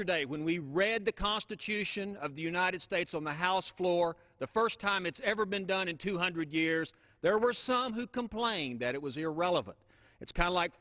A man speaks earnestly